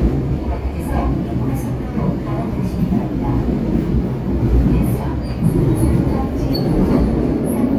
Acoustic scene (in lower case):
subway train